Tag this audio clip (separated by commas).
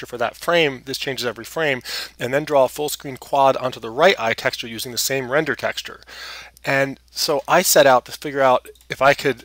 Speech